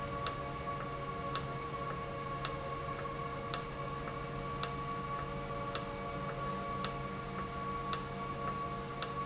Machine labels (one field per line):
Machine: valve